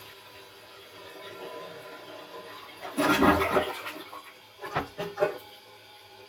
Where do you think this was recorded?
in a restroom